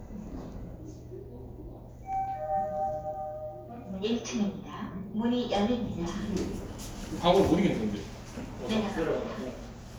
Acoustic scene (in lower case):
elevator